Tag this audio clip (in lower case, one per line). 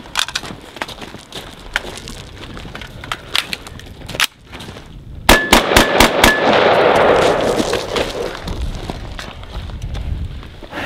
machine gun